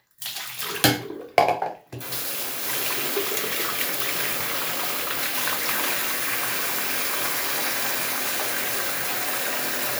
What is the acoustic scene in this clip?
restroom